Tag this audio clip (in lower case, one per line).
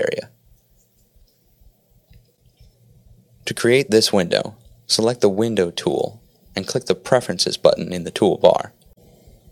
speech